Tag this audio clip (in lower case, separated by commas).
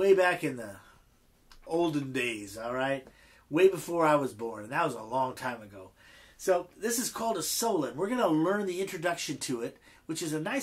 speech